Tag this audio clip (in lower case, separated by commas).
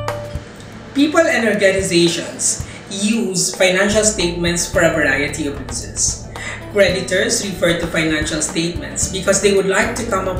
music, speech